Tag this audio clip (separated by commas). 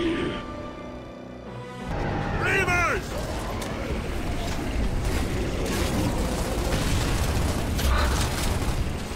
Speech